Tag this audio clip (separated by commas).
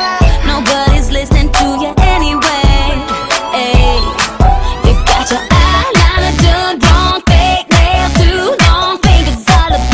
Music